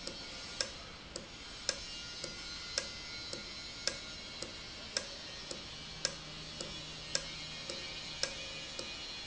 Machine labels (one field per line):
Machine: valve